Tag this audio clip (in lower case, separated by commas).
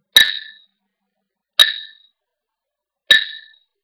glass